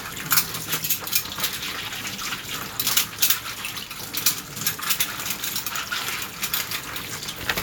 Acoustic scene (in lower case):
kitchen